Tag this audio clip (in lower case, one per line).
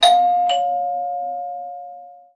door
alarm
doorbell
home sounds